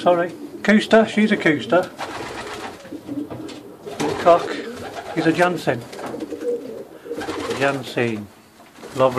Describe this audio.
A man talks and cooing of doves are constantly in the background